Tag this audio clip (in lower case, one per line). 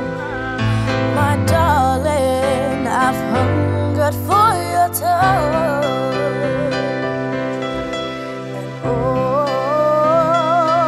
independent music
music